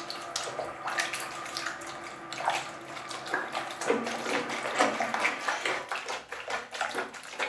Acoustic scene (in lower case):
restroom